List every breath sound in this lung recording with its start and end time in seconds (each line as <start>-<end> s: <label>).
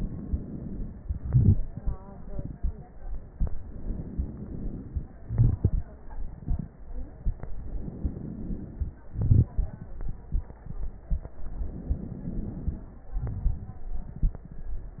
0.00-0.98 s: inhalation
0.99-1.95 s: exhalation
1.00-1.96 s: crackles
3.58-5.16 s: inhalation
5.17-7.38 s: crackles
5.17-7.40 s: exhalation
7.47-9.08 s: inhalation
9.09-11.39 s: exhalation
9.09-11.39 s: crackles
11.43-13.14 s: inhalation
13.14-15.00 s: exhalation
13.14-15.00 s: crackles